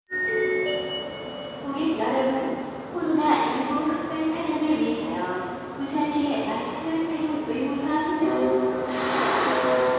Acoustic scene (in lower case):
subway station